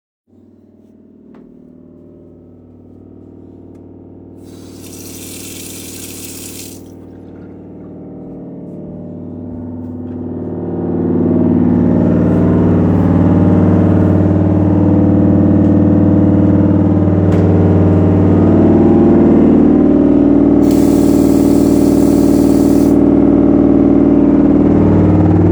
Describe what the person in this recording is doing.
I move in the kitchen and put out a mug. Then start filling it with water. I drink. Then I proceed to check on the washing machine with opening a door. In the bathroom I turned the water in the sink on.